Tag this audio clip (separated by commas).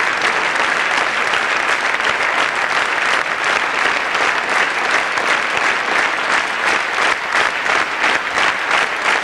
Applause, people clapping, Speech